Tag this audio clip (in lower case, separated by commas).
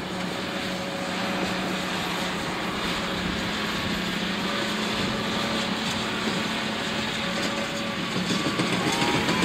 vehicle